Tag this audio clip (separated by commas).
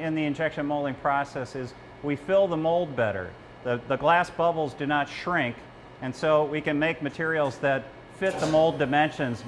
Speech